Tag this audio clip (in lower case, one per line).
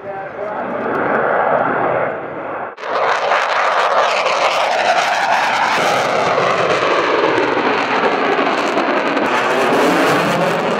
airplane flyby